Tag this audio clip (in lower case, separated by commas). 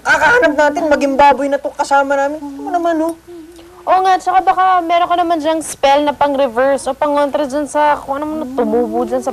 speech